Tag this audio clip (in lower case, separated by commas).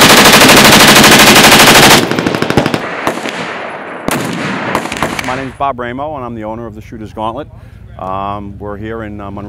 machine gun shooting